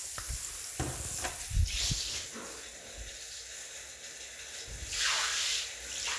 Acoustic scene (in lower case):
restroom